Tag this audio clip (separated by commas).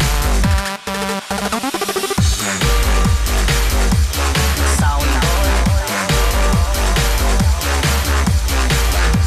Electronic dance music